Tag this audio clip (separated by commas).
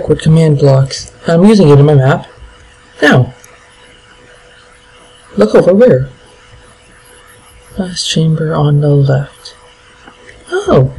Speech